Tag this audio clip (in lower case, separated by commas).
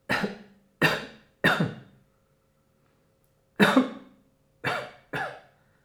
cough, respiratory sounds